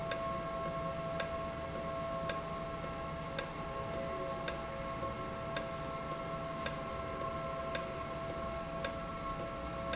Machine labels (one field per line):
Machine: valve